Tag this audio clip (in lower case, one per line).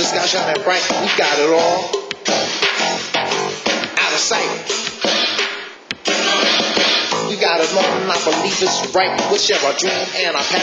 music